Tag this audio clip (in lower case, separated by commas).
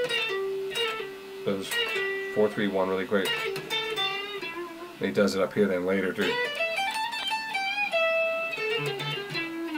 electric guitar, speech, music, tapping (guitar technique), musical instrument, guitar, plucked string instrument